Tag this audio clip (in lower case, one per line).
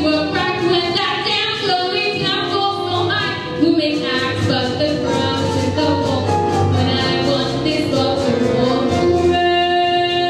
singing
inside a large room or hall
music